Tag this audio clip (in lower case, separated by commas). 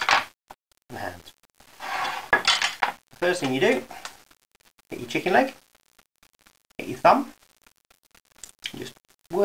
speech